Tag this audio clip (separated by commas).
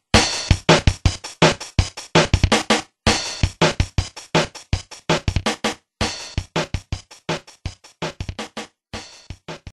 Music